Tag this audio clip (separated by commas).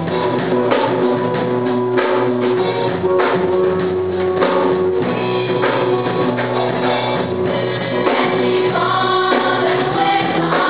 Choir, Music